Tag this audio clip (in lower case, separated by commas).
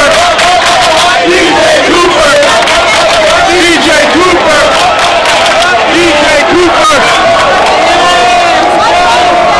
speech, chant, crowd, people crowd